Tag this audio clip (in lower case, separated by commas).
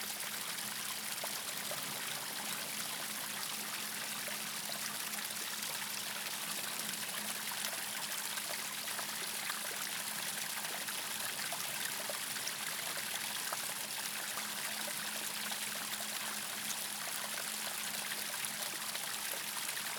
stream, water